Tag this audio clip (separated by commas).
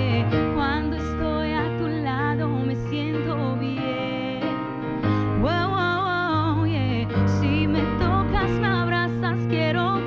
Music